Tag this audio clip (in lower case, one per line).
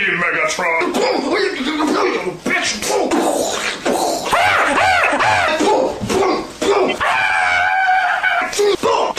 speech